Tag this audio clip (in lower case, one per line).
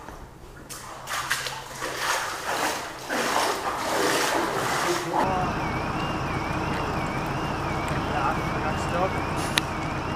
speech